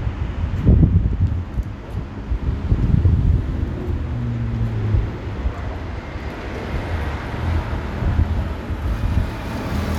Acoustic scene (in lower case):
street